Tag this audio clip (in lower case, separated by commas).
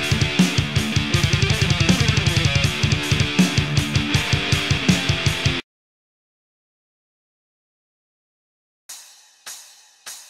music, exciting music